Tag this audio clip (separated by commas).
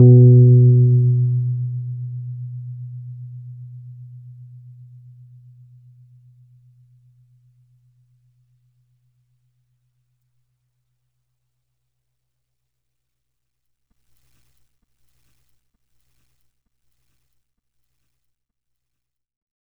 Music, Piano, Musical instrument, Keyboard (musical)